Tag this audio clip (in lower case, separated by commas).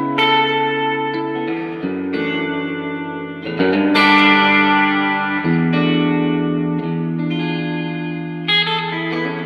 inside a large room or hall, musical instrument, music, bass guitar, plucked string instrument, guitar